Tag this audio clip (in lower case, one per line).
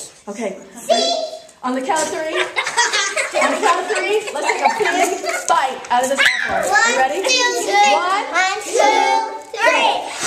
kid speaking
speech
inside a large room or hall